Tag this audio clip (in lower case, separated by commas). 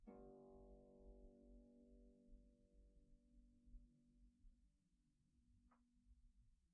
musical instrument, music, harp